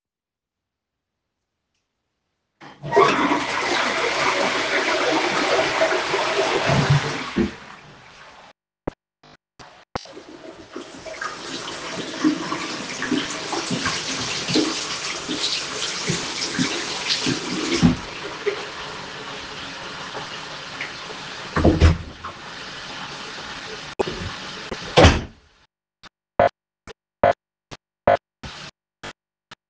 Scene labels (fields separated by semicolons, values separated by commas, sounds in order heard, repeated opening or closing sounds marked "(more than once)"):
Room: bathroom; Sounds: toilet flushing